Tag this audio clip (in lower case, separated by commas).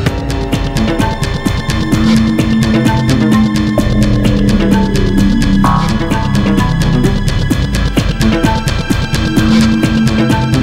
music, theme music